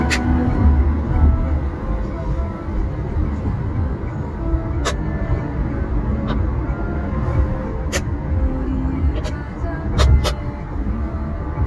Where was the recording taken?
in a car